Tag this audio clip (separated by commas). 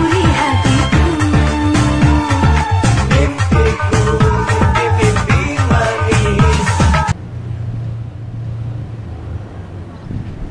Music